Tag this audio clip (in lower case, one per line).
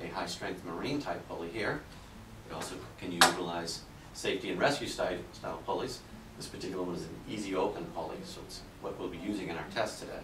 speech